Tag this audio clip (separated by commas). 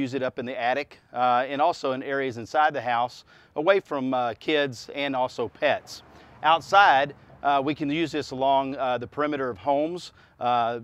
Speech